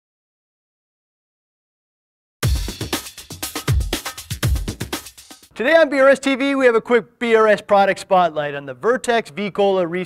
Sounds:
speech, music

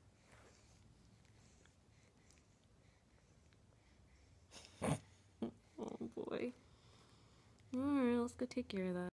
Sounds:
speech

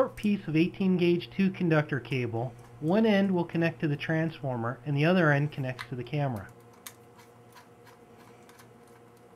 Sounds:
speech

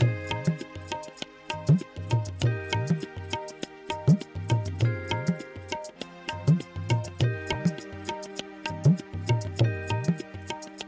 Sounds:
music

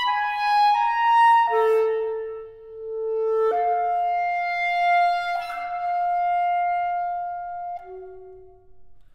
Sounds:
flute, woodwind instrument

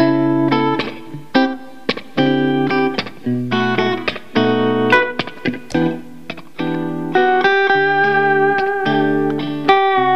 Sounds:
bass guitar, plucked string instrument, music

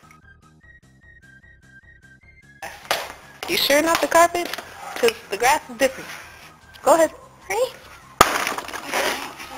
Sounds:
breaking, speech, music

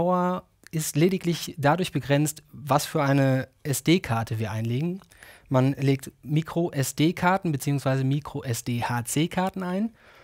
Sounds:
speech

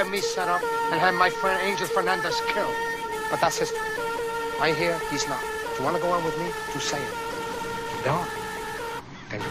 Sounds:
music

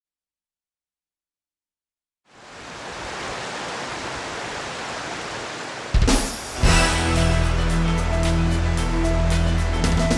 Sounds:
pink noise, outside, rural or natural, music

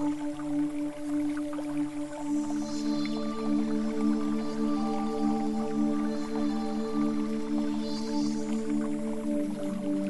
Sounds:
music

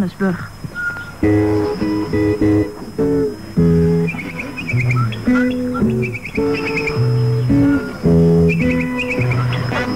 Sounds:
music, speech

